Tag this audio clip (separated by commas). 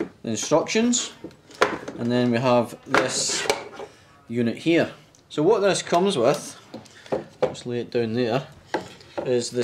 Speech